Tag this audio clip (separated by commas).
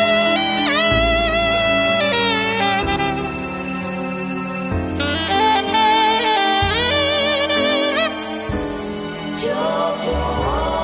playing saxophone